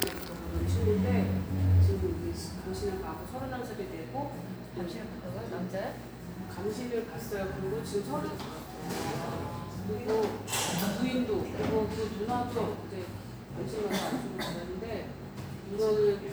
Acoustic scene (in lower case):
cafe